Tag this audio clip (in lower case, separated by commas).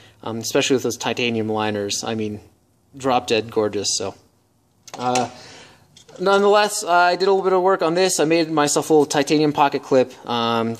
speech, tools